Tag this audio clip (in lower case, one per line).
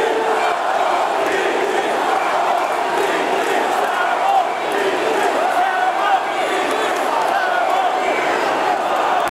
speech